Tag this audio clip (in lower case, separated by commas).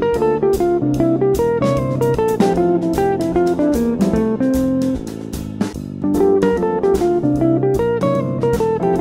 music, plucked string instrument, electric guitar, strum, musical instrument